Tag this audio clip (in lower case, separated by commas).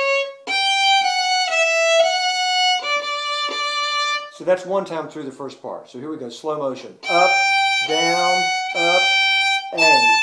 violin, music, speech, musical instrument